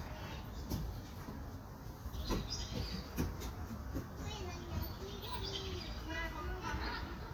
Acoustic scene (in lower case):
park